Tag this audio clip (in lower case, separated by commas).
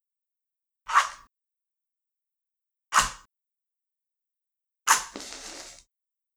fire